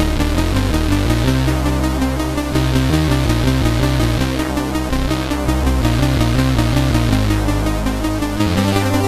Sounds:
Theme music, Music

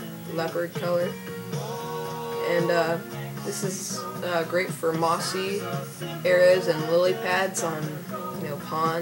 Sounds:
Speech, Music

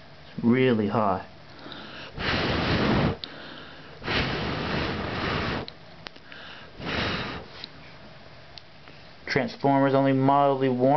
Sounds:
Speech

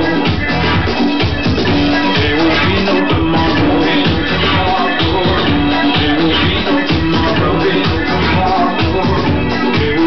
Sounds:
House music, Music

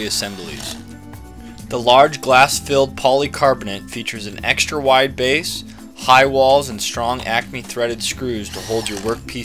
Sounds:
Speech, Music

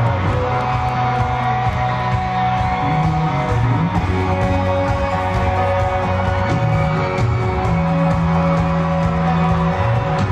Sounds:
Music

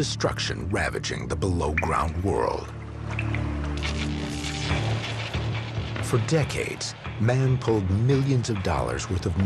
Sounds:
Music, Speech

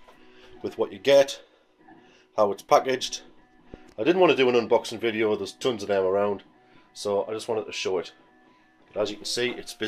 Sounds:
Speech, Printer

